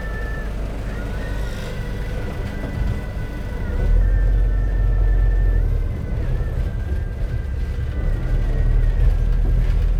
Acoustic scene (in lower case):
bus